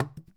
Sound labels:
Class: object falling